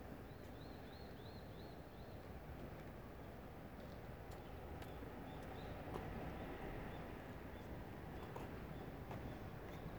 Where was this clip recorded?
in a residential area